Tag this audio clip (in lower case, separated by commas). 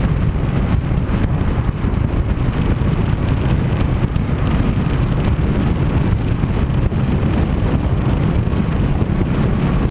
vehicle, car